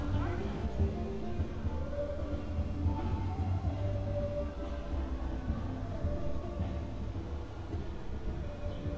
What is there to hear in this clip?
music from a fixed source